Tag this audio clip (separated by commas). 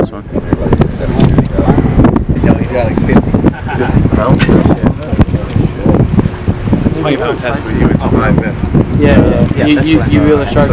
Speech, outside, rural or natural